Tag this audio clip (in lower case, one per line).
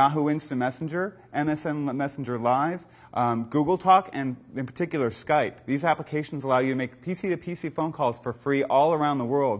speech